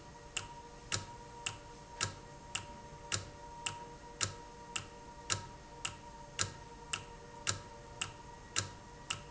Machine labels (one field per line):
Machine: valve